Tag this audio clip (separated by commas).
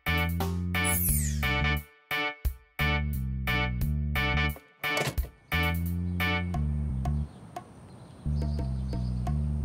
Music